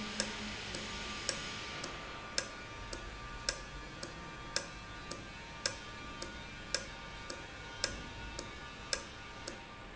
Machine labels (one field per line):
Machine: valve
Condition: normal